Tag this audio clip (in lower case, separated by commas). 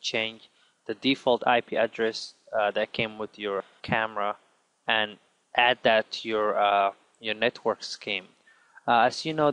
speech